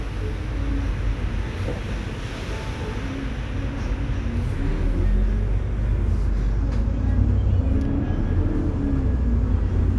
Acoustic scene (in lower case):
bus